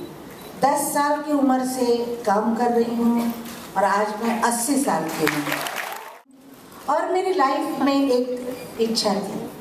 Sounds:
speech

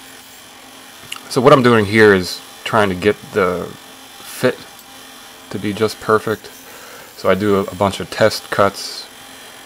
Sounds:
speech

